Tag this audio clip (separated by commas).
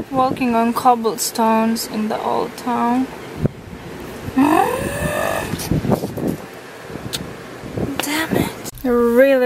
outside, rural or natural, Speech